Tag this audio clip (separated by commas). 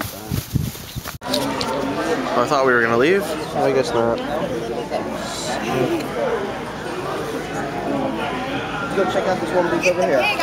Speech, inside a public space